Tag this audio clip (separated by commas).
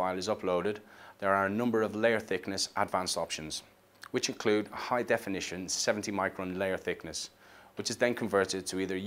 Speech